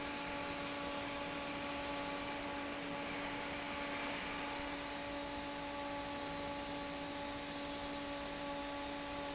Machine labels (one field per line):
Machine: fan